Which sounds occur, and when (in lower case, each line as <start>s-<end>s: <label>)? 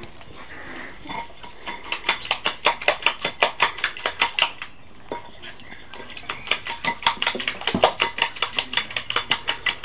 0.0s-9.8s: background noise
0.4s-0.8s: animal
5.6s-6.1s: silverware
5.6s-6.3s: bird
6.3s-9.8s: dishes, pots and pans
7.7s-7.9s: generic impact sounds
8.6s-9.4s: man speaking